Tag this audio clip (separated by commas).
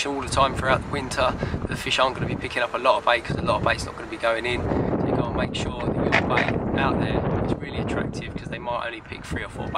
Speech